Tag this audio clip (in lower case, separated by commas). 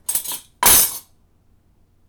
home sounds, silverware